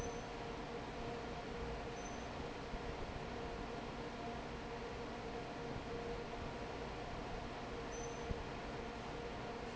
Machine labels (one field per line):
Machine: fan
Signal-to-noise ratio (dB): 6 dB